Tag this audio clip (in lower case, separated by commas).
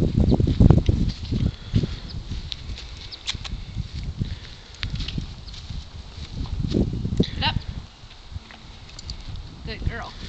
speech, animal